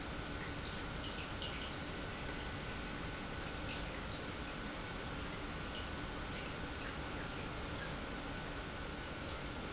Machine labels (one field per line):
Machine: pump